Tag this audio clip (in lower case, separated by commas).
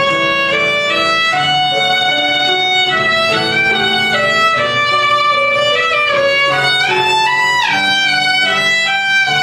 music, musical instrument, violin